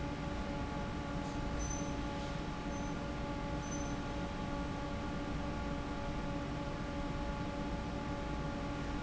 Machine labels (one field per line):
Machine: fan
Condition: normal